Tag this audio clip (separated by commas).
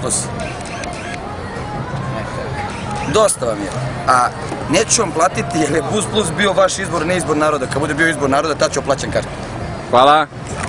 Music, Speech